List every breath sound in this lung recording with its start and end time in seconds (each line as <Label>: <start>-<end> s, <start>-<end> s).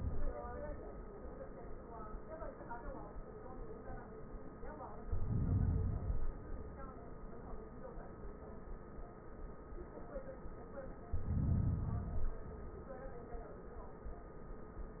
Inhalation: 5.00-5.95 s, 11.07-12.11 s
Exhalation: 5.93-7.21 s, 12.11-13.26 s